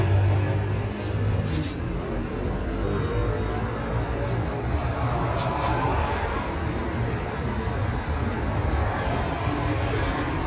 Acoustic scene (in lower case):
street